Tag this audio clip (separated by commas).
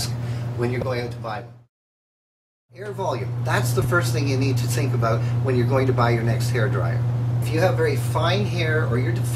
Speech